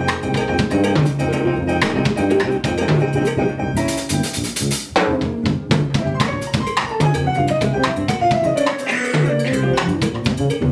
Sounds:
drum kit
drum
percussion
bass drum
rimshot

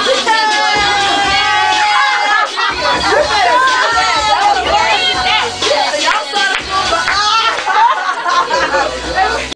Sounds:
music
speech

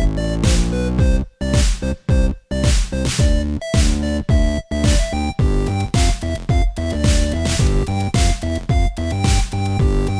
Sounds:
video game music
soundtrack music
music

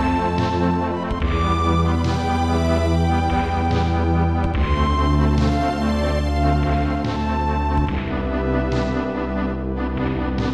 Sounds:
video game music
music

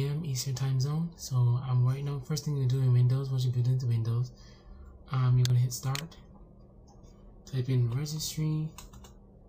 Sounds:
speech

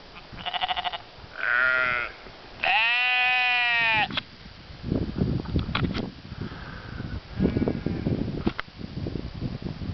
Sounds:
livestock

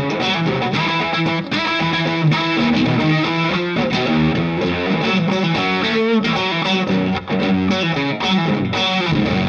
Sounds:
music

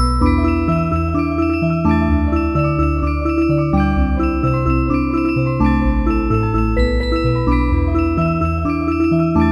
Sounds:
music

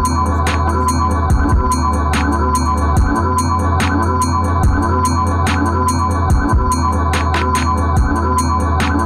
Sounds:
music
inside a small room

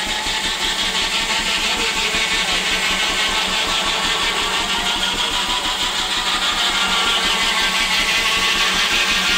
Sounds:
engine
medium engine (mid frequency)

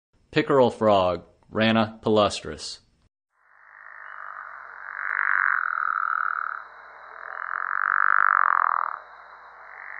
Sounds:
frog
croak

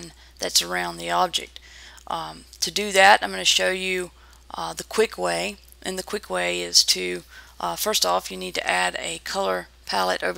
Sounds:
speech

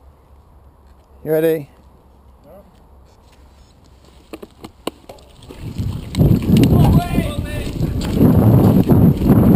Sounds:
speech

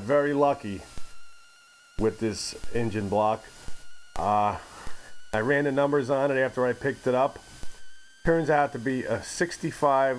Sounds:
speech

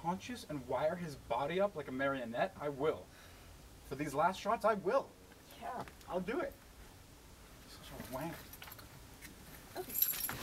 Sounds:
outside, urban or man-made
speech

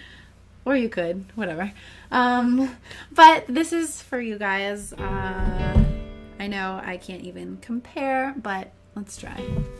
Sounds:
music
speech

